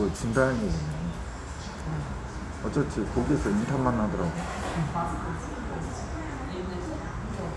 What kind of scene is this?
restaurant